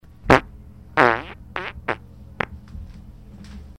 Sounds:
fart

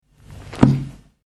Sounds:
music
percussion
musical instrument

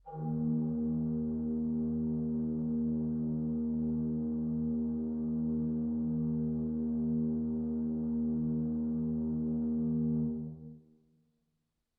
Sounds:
organ
keyboard (musical)
musical instrument
music

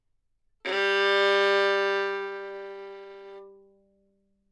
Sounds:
musical instrument
bowed string instrument
music

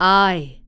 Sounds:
speech
female speech
human voice

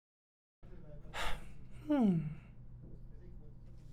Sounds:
sigh
human voice

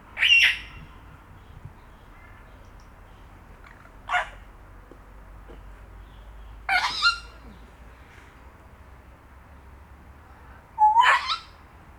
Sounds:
wild animals
animal
bird
bird song

